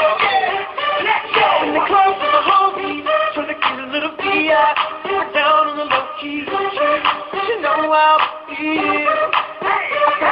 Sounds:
speech
music

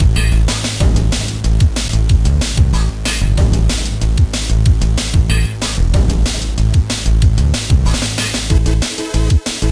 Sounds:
music
soundtrack music

